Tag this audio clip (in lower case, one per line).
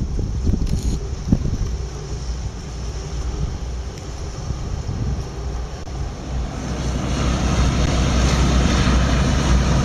outside, urban or man-made
boat
vehicle